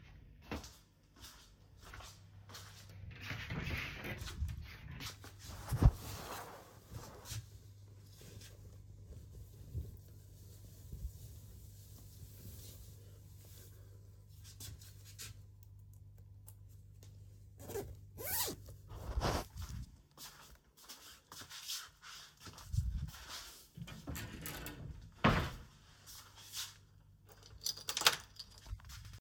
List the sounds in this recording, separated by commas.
footsteps, wardrobe or drawer, keys